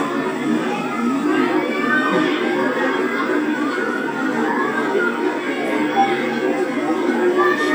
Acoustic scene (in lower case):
park